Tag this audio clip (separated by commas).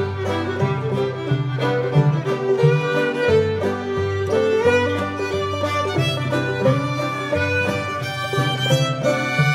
Music